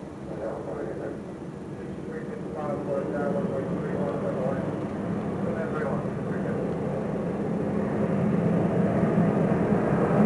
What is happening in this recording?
A muffled voice speaks under the sound of an aircraft